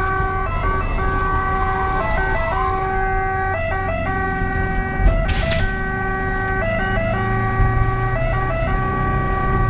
An ambulance using its siren and driving fast